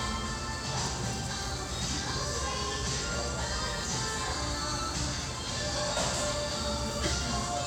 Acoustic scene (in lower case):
restaurant